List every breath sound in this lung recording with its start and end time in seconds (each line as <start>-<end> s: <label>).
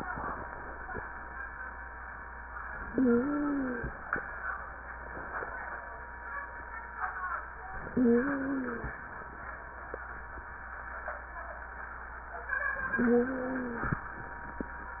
2.82-3.91 s: inhalation
2.82-3.91 s: wheeze
7.88-8.97 s: inhalation
7.88-8.97 s: wheeze
12.92-14.01 s: inhalation
12.92-14.01 s: wheeze